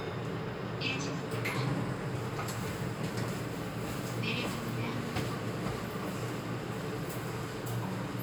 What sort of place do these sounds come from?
elevator